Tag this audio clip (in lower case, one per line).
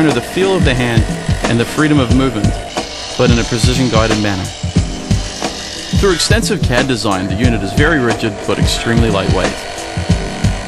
tools